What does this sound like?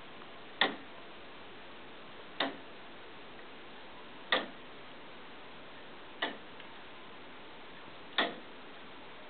A clock tick-tocking